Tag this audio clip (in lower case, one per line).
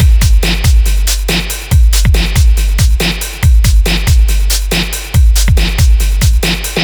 musical instrument
snare drum
music
drum
percussion